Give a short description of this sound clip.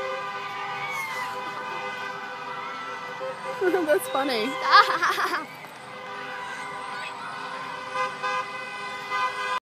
Honking noises in background and woman speaks and child laughs in foreground